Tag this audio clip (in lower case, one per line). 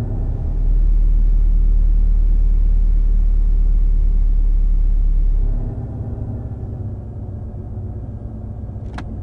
vehicle